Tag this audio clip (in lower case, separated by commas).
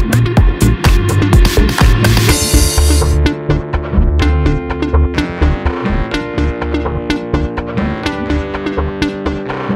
music, sampler, drum machine, synthesizer